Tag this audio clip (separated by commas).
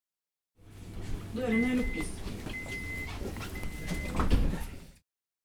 Rail transport, Vehicle, underground